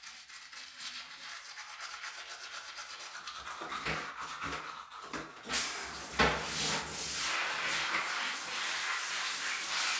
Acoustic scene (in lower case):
restroom